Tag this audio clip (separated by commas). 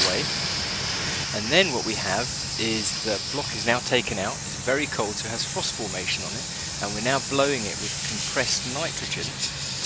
Speech